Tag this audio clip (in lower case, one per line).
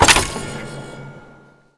mechanisms